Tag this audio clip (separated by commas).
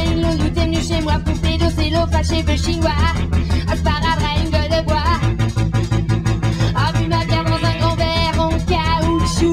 Music